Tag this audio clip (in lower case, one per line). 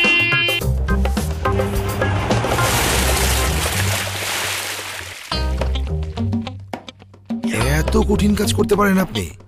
rain on surface
music
speech